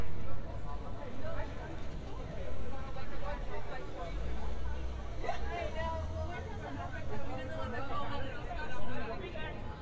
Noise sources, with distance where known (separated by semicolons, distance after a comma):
person or small group talking, near